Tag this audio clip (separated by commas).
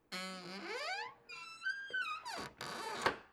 Squeak